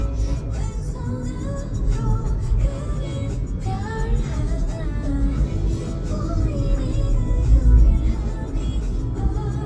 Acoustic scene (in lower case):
car